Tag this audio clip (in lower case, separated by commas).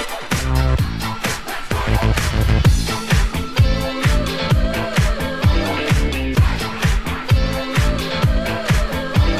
dance music, music